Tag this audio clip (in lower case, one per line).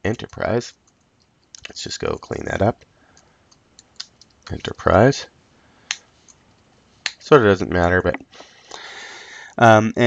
speech